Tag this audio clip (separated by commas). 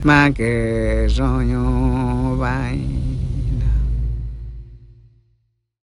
Human voice, Singing